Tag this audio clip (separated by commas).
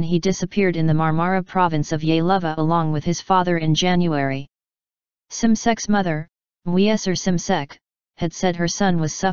Speech